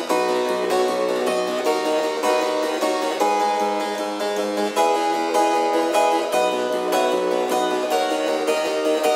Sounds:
playing harpsichord
harpsichord
keyboard (musical)

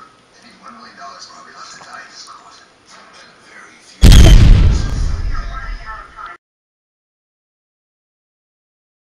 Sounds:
speech

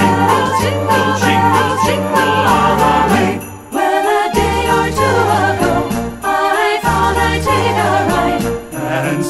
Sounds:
tinkle

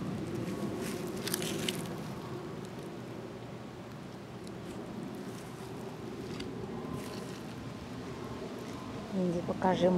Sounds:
speech

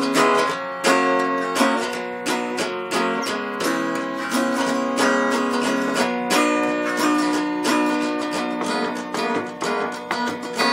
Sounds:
playing zither

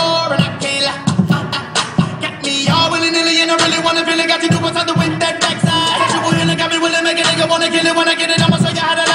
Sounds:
beatboxing
music

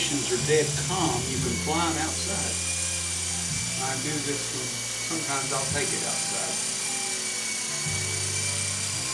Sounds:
speech

